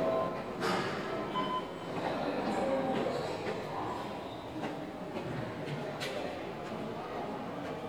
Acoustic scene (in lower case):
subway station